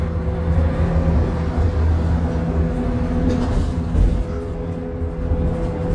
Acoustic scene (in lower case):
bus